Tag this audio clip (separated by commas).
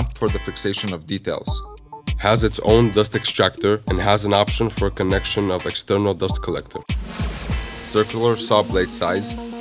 Speech, Music